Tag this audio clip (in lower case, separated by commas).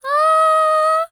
human voice, singing, female singing